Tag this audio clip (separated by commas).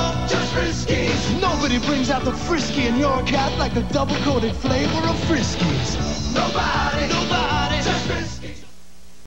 Music, Speech